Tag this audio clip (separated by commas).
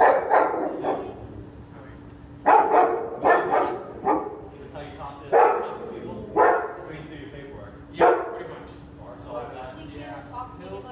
Bow-wow, Speech, Dog, Animal, Domestic animals